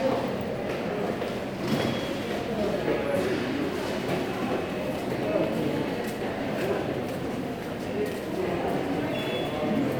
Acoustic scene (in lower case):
subway station